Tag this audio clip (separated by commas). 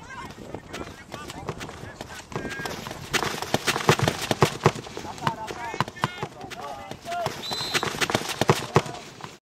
Speech